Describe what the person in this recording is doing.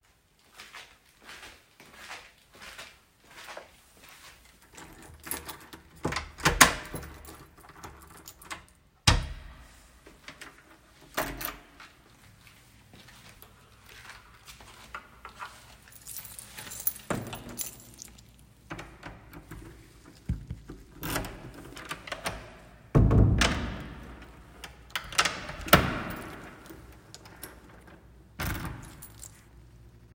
I walked across the hallway and unlocked the door with keys and then locked and closed it.